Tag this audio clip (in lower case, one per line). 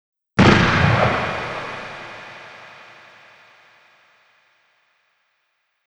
explosion